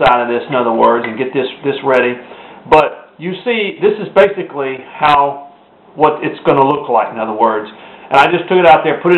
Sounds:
Speech

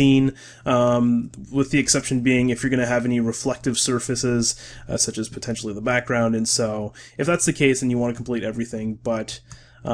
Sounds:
Speech

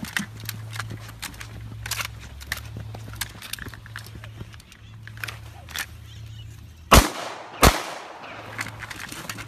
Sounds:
firing muskets

